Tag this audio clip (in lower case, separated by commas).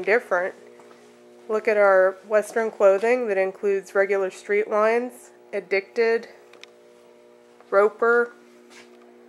speech